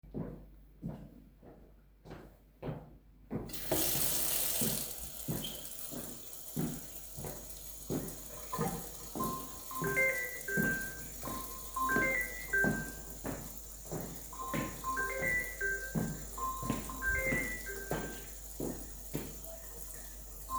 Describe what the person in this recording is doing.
A person walks towards a tap, turns on the water. Then he walks while getting a phone call.